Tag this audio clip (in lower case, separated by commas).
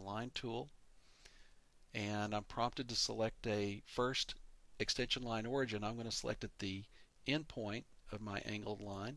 speech